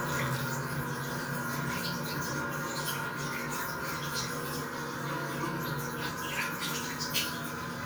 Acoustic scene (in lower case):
restroom